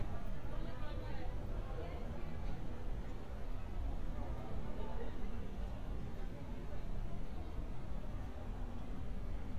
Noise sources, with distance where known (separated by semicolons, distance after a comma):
person or small group talking, far